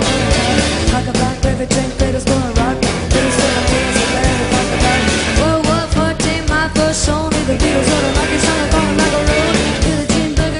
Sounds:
Music

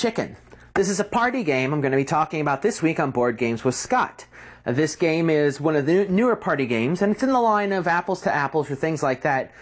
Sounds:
Speech

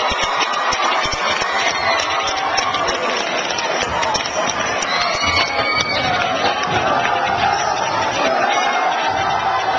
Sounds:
Speech

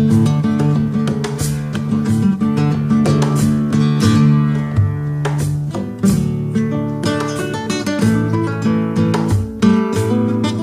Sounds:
Musical instrument, Guitar, Music, Acoustic guitar, Plucked string instrument

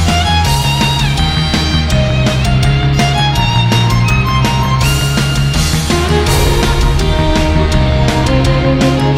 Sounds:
fiddle, Musical instrument, Music

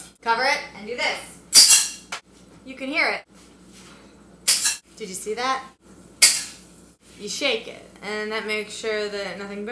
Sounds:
Speech, inside a small room

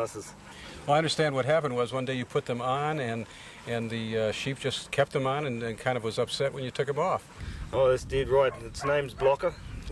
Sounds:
Speech

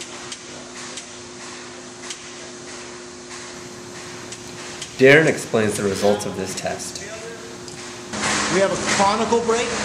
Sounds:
Speech, inside a large room or hall

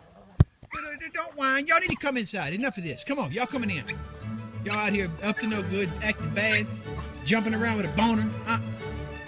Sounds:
Music, canids, Dog, pets, Speech, outside, urban or man-made, Animal

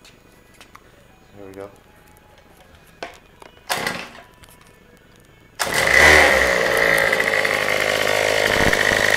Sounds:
Engine, Vehicle, Idling, Medium engine (mid frequency), revving, Speech

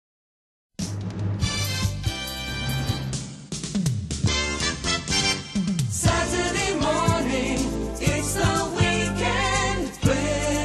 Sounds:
Music, Jingle (music)

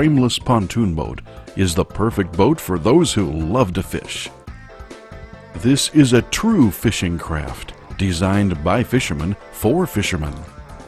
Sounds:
Music, Speech

